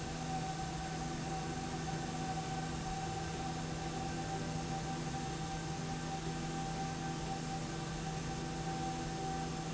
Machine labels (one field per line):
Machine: slide rail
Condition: normal